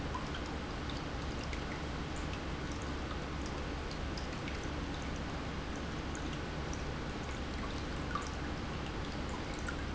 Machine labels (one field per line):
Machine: pump